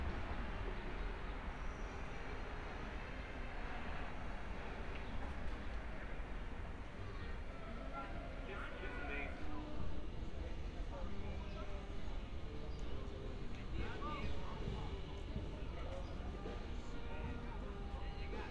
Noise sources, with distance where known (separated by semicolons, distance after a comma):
music from an unclear source, far; person or small group talking